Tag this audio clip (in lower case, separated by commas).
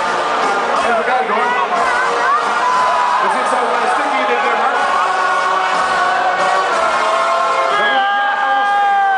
speech, music